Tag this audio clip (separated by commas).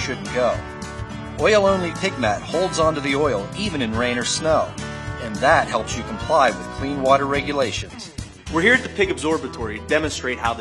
Speech, Music